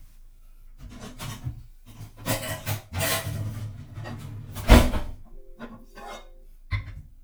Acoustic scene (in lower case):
kitchen